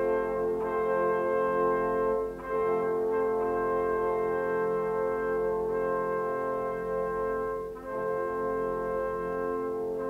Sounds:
brass instrument

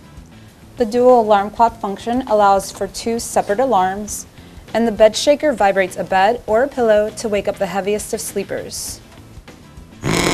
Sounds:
speech, music

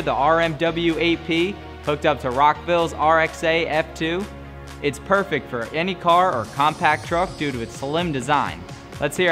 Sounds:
speech, music

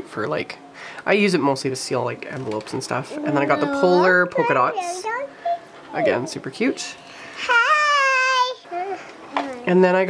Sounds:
babbling, speech

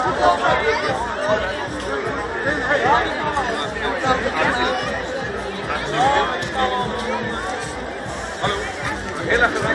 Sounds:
speech, chatter, crowd

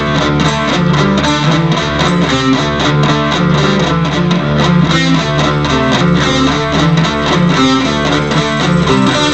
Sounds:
plucked string instrument, music, musical instrument, bass guitar, guitar, electric guitar

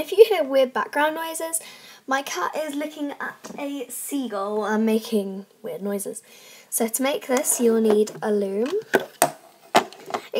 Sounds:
speech

